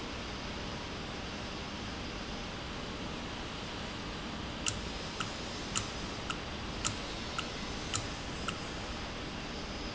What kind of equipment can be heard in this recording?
valve